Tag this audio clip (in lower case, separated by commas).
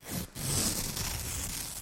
tearing